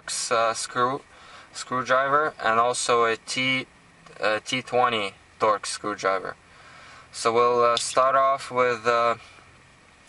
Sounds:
Speech

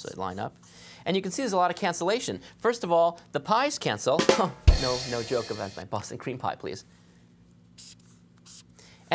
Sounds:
Drum kit

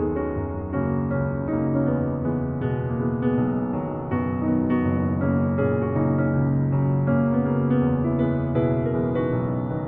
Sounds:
Music

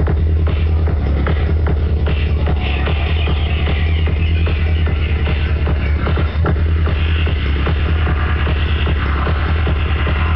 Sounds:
Music

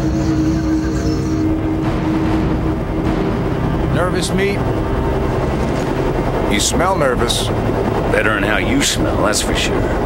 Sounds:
Music, Speech

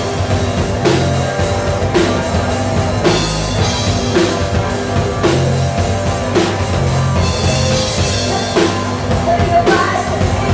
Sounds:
Bass drum, Drum, Music, Rock music, Cymbal, Percussion, Guitar, Drum kit, Musical instrument, Plucked string instrument, Heavy metal

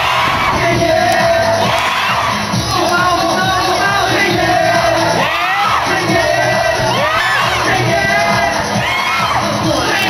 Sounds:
Crowd, Music

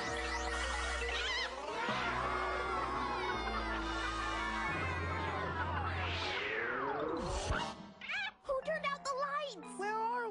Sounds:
Music, Speech

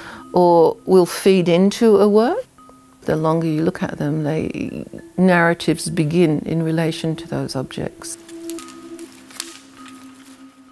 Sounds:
people whispering

